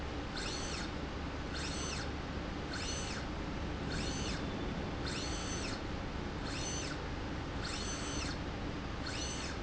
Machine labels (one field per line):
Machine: slide rail